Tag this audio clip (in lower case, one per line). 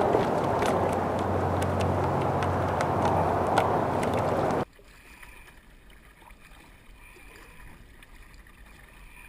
kayak
boat
vehicle